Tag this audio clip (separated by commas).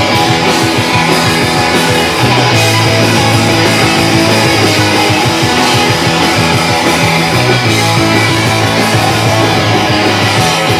Rock and roll, Music